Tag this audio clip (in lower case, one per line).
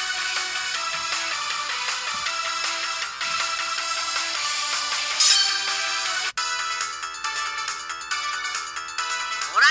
speech
music